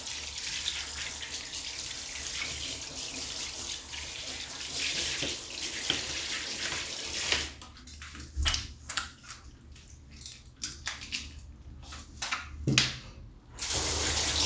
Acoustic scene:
restroom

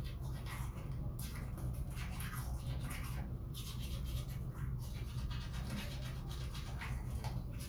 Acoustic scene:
restroom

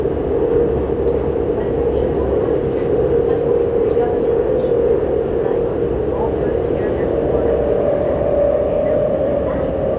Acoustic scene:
subway train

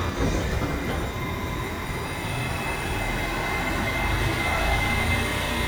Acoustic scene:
subway station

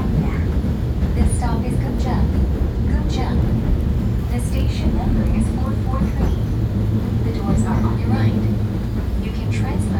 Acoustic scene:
subway train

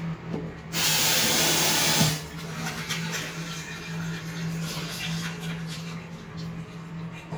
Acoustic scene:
restroom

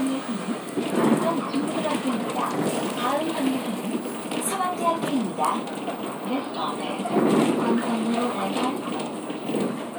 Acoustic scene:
bus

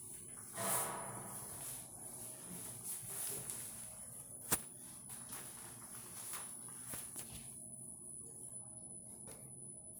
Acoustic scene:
elevator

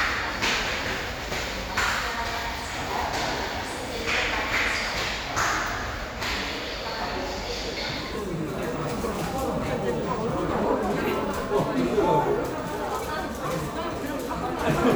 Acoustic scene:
crowded indoor space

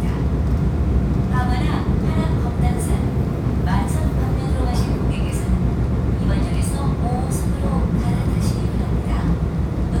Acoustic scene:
subway train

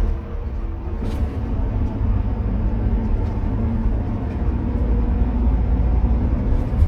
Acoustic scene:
car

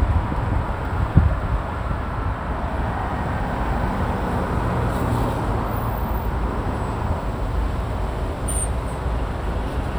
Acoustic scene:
street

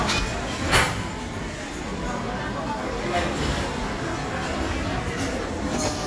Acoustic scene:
crowded indoor space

